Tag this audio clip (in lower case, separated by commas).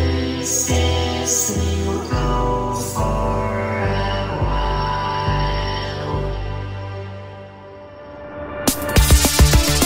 music